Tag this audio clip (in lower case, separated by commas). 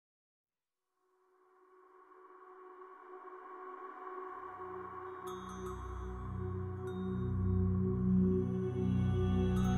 ambient music, music